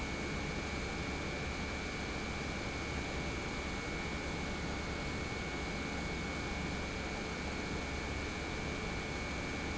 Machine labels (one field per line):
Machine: pump